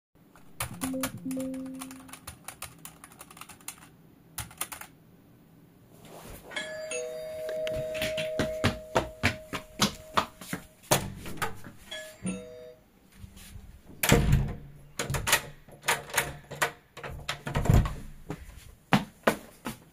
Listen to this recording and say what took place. I started typing on a keyboard at a desk. A bell rang, after which I stood up and walked toward the door. The bell rang again while I opened the door, closed it, locked it, and walked away.